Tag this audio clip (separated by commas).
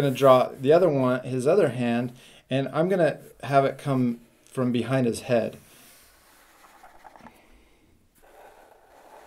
inside a small room, Speech